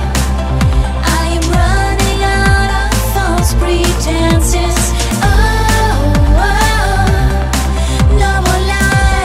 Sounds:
tender music, music

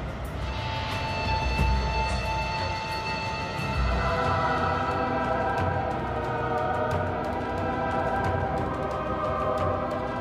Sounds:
music, soundtrack music, scary music

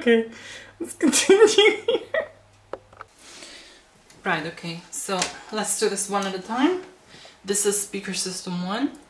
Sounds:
speech

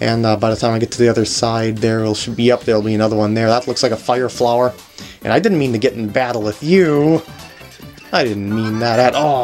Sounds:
speech

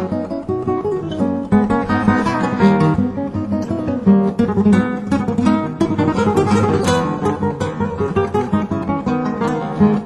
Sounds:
music, plucked string instrument, strum, guitar, musical instrument

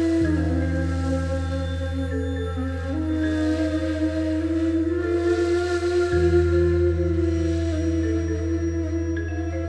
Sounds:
music

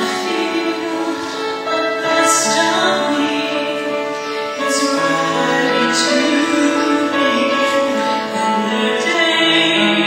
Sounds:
female singing, music

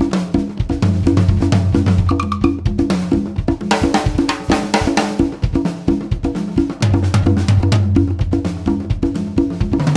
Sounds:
music, percussion, wood block

